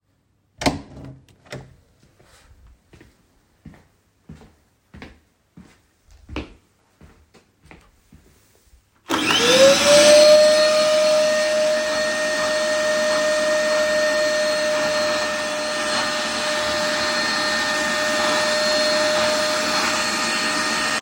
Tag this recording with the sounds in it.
door, footsteps, vacuum cleaner